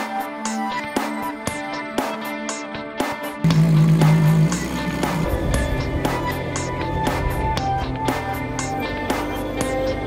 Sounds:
music
medium engine (mid frequency)

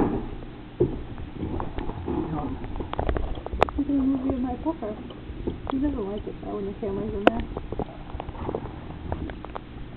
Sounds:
speech

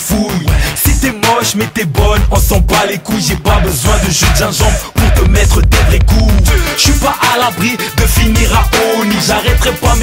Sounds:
music

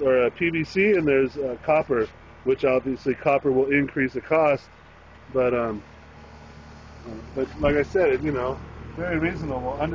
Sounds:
speech

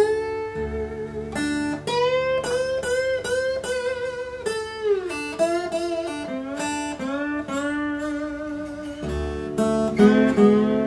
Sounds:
musical instrument
plucked string instrument
guitar
music
blues
acoustic guitar

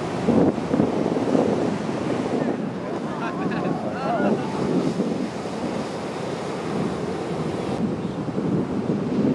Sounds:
speech
ocean
surf

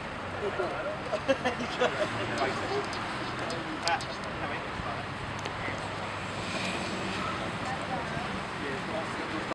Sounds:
speech

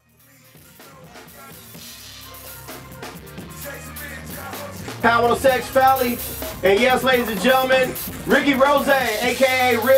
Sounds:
speech
music

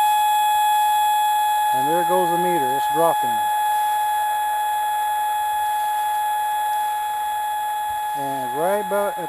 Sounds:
outside, rural or natural
speech

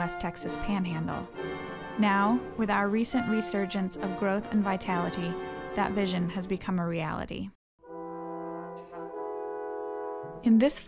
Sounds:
speech
orchestra
music

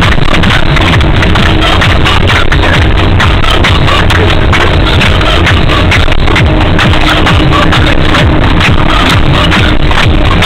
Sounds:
music

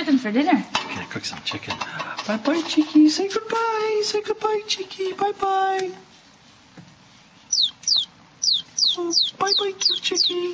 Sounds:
speech

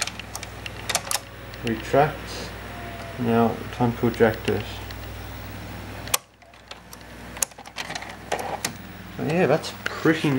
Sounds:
speech

